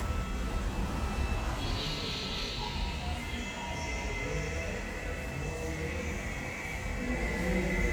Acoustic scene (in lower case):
subway station